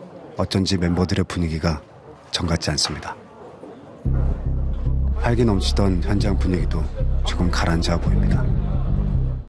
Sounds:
music
speech

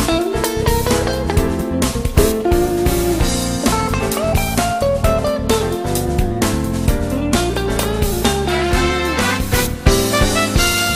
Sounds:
music

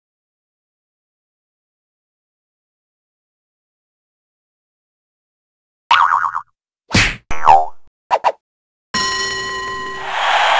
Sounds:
silence

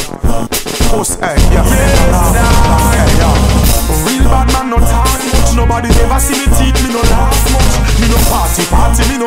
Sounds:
music
hip hop music

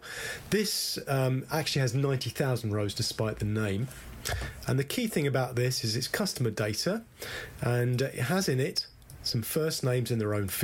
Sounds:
speech

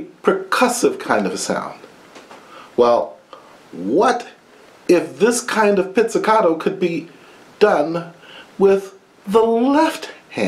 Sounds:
speech

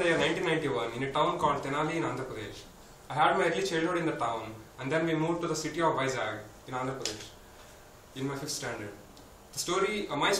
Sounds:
narration
speech
male speech

